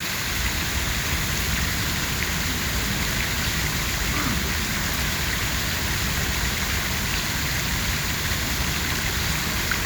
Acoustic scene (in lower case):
park